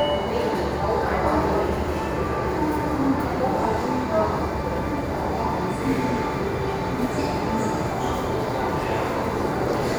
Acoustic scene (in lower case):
subway station